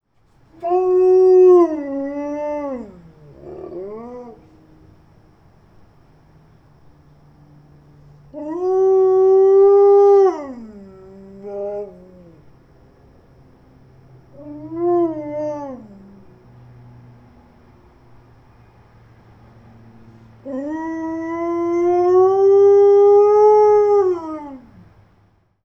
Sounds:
animal, domestic animals, dog

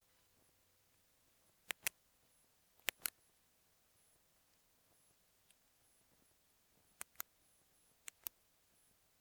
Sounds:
tick

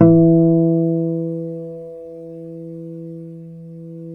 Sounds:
music, plucked string instrument, guitar, musical instrument, acoustic guitar

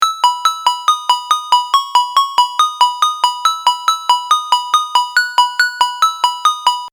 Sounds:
alarm, ringtone, telephone

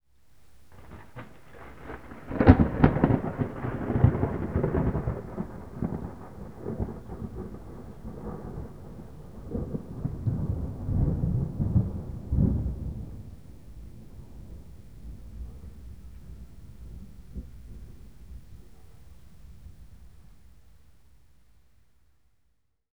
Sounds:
thunder, thunderstorm

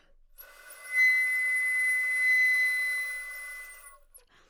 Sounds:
musical instrument, music, wind instrument

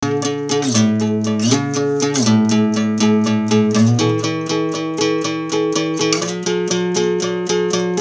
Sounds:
music, musical instrument, acoustic guitar, plucked string instrument, guitar

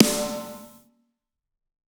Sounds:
music, drum, percussion, snare drum, musical instrument

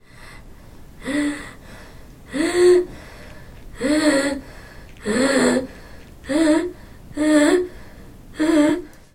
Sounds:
breathing, respiratory sounds

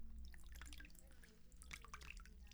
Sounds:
liquid, water

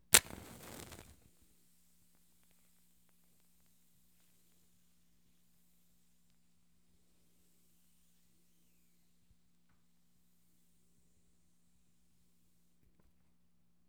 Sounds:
fire

